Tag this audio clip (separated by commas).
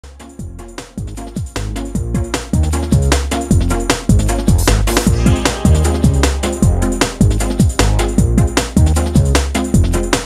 Drum and bass